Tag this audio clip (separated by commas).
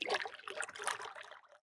Liquid, Splash